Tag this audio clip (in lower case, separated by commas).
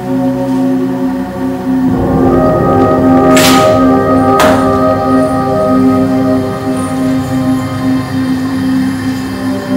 music